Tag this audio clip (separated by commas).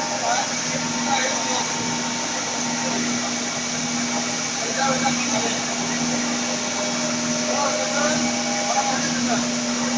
Speech